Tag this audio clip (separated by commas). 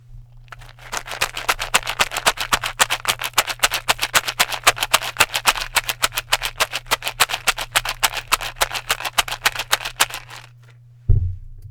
Rattle